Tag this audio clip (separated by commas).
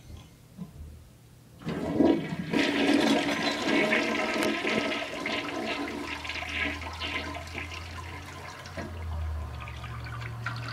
Toilet flush, Water